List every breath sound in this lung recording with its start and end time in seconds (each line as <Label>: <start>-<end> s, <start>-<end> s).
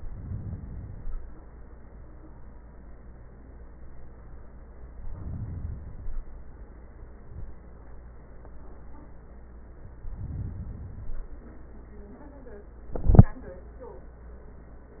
Inhalation: 0.00-1.45 s, 4.85-6.30 s, 10.00-11.46 s